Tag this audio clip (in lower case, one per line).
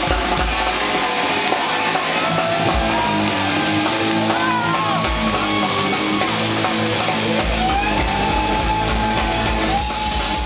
music